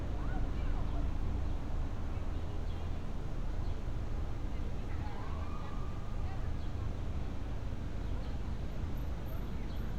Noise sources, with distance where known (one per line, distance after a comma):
unidentified alert signal, far
person or small group talking, far